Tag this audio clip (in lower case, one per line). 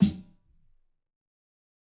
music
drum
percussion
snare drum
musical instrument